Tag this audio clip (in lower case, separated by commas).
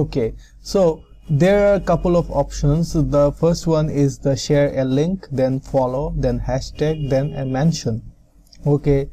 speech